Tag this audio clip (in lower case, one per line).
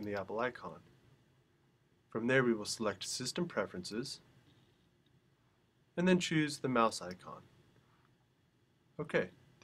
speech